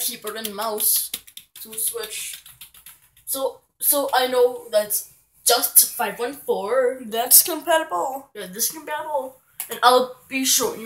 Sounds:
speech

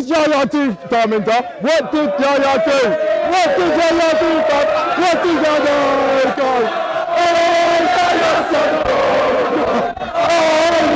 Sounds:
outside, urban or man-made, speech

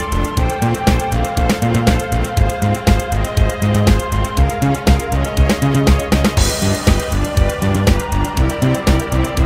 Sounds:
music, video game music

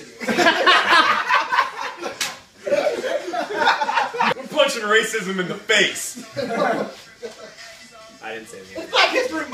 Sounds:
speech, smack, inside a large room or hall, music

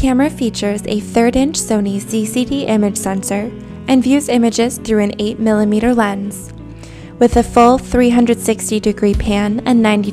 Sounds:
speech, music

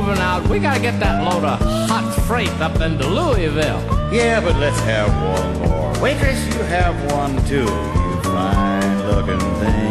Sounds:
music

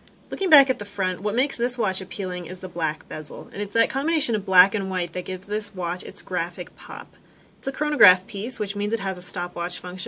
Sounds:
speech

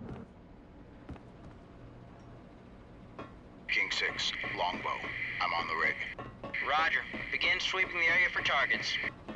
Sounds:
speech

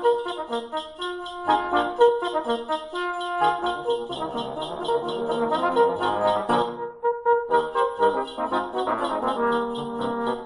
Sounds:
brass instrument, trombone

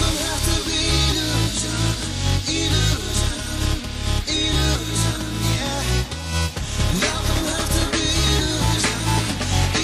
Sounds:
music

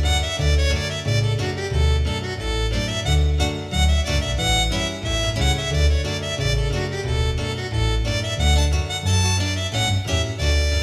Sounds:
music

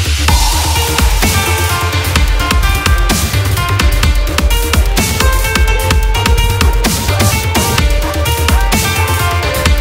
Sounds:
electronic music, music, dubstep

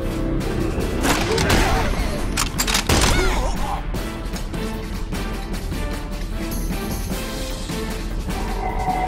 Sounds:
music, boom

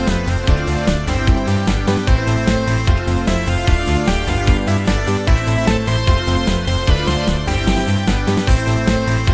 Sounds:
music

